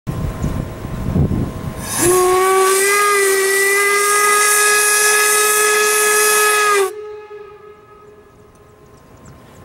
A loud whistle of a train as it hisses off into the air